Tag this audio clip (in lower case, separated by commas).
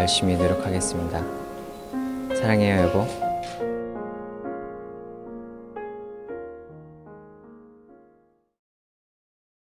male speech, music, speech